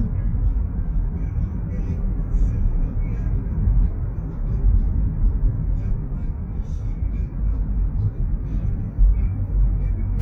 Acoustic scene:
car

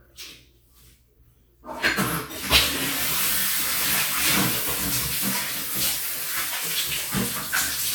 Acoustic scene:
restroom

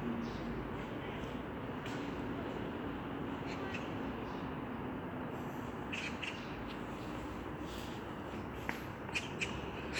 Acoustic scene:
residential area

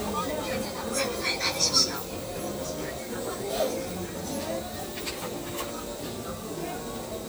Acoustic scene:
crowded indoor space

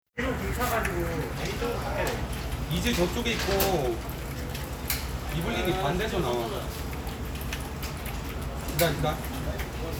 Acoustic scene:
crowded indoor space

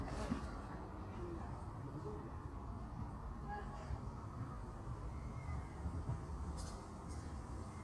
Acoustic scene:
park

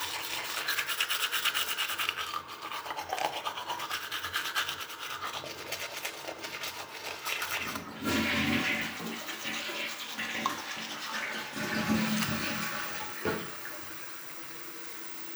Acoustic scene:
restroom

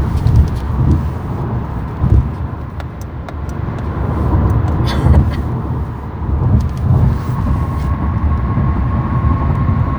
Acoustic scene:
car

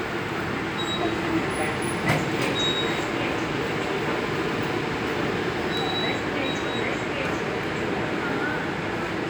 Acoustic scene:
subway station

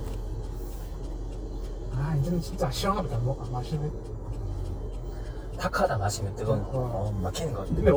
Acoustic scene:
car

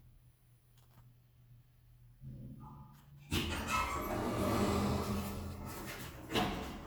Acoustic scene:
elevator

